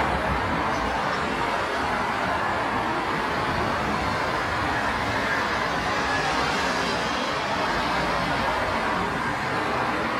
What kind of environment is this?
street